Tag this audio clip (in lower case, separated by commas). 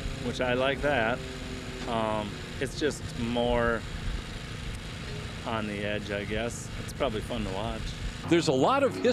speech